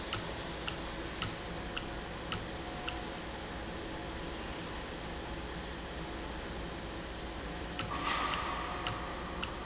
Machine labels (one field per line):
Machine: valve